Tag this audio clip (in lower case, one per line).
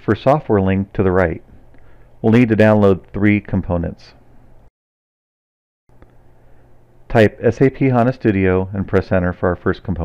speech